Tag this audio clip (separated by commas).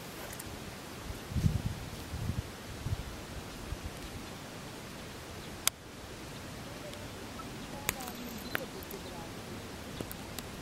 Animal